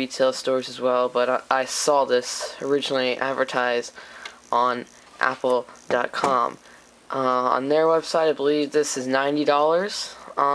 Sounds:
Speech

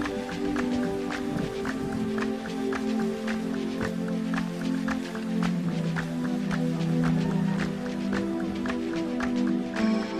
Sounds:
Stream, Music

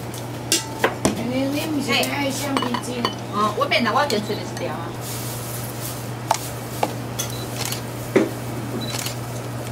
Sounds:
Speech, inside a small room

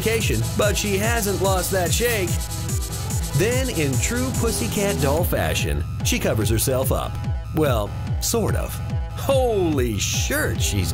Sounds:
Speech, Music

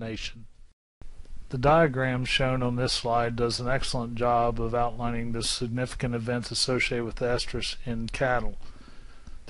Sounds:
Speech

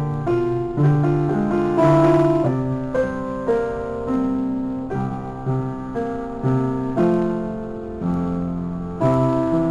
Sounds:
Music

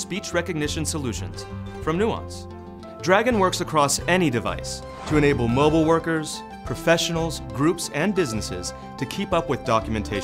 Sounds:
Narration, Male speech, Speech, Music

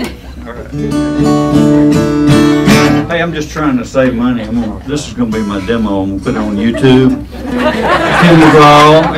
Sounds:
Speech, Music

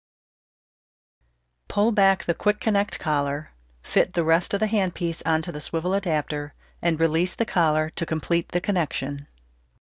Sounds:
Speech

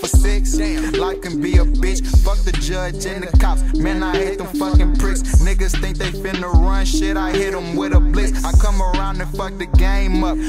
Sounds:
Rapping, Music

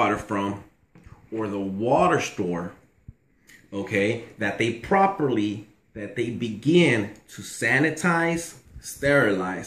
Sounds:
Speech

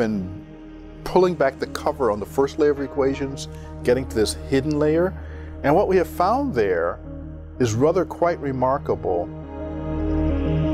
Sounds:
Tender music, Speech, Music

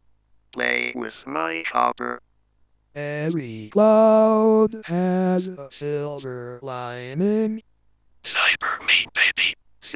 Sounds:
Speech

